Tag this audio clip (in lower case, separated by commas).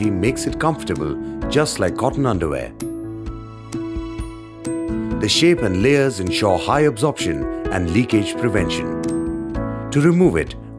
music, speech